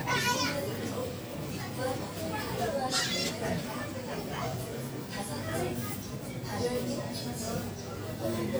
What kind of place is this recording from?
crowded indoor space